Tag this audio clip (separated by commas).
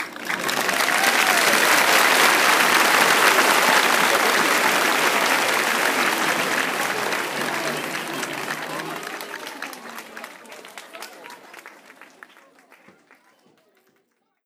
Applause, Human group actions, Cheering